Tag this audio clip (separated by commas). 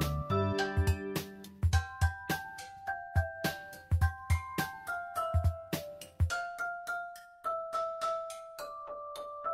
Christian music, Music, Christmas music